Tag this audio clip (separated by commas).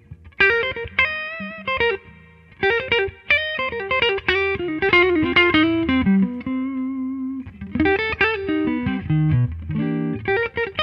Plucked string instrument, Music, Electric guitar, Musical instrument